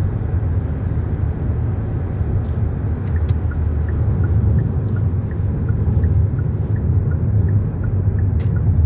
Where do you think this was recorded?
in a car